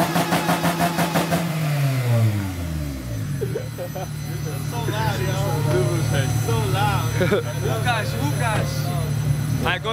An engine revs and people laugh